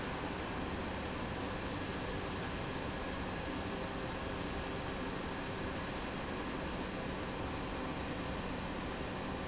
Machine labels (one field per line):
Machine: fan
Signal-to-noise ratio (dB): -6 dB